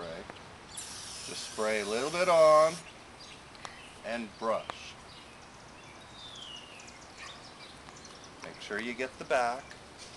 An adult male is speaking, a hissing sound occurs, and birds are chirping and singing